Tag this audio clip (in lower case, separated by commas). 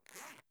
domestic sounds, zipper (clothing)